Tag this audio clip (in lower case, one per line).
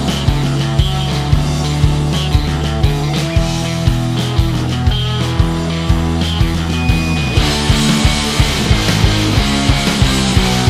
rock music
music